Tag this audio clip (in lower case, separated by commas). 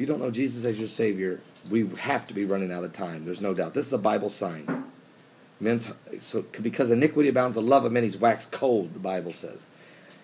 speech